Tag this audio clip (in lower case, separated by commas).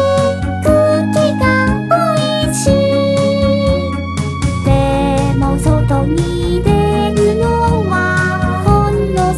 child singing, music